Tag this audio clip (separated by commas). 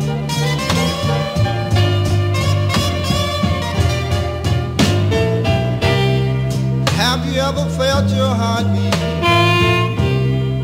Blues, Music